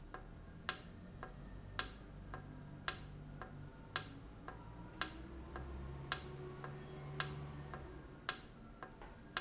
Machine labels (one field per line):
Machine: valve